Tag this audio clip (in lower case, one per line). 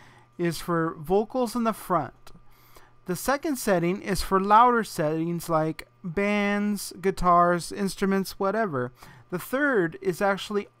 speech